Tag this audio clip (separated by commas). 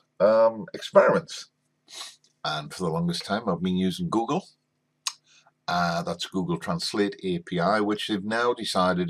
Speech